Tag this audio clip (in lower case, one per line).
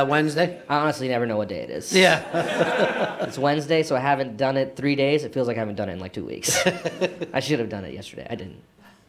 speech